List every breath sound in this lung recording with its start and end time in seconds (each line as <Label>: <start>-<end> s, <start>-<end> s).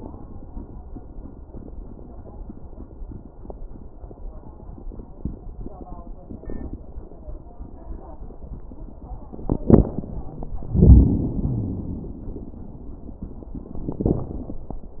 Wheeze: 11.43-12.09 s